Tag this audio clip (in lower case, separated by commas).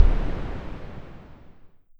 boom, explosion